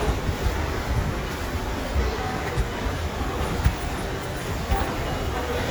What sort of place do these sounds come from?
subway station